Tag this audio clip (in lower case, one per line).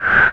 breathing
respiratory sounds